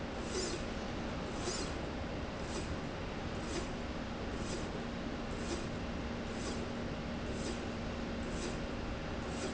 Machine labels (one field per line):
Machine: slide rail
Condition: normal